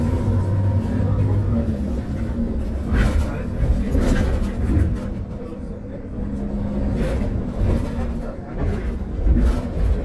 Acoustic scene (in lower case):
bus